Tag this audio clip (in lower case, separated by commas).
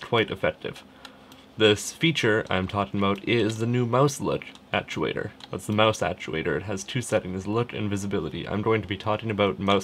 speech